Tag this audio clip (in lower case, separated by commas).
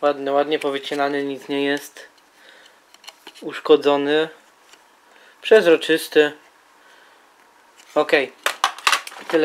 inside a small room, speech